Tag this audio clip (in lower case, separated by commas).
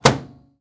door, domestic sounds, slam, microwave oven